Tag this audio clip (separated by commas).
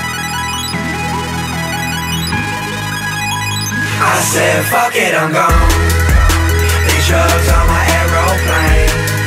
Music